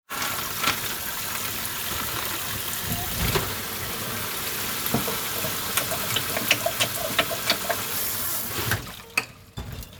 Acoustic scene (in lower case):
kitchen